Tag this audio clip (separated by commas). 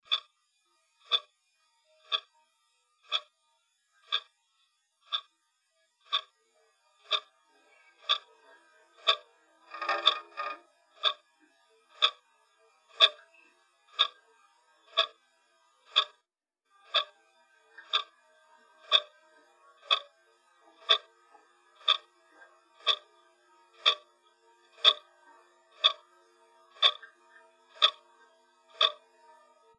Mechanisms, Clock